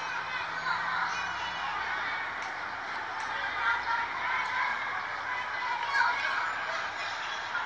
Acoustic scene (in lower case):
residential area